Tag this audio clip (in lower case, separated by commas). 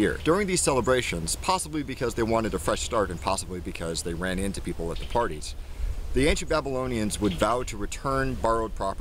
speech